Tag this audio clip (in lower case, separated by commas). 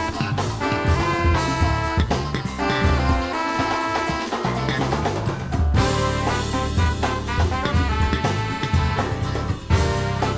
drum kit, percussion, drum, musical instrument, music, jazz, saxophone